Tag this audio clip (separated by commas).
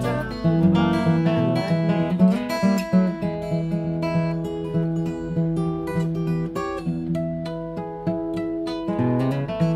Blues, Music